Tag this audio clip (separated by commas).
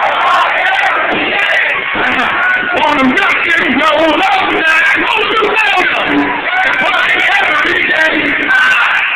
Speech